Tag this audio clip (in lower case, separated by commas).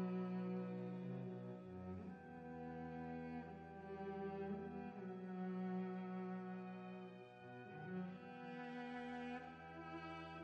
cello, bowed string instrument